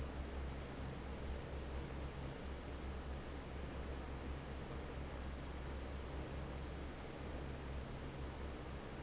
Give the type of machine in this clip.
fan